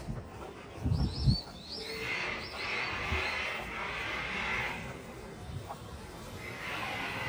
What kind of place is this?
residential area